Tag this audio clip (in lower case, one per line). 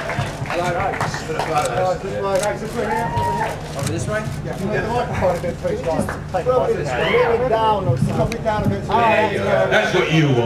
speech